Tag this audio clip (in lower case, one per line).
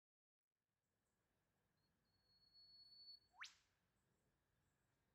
animal
wild animals
bird call
bird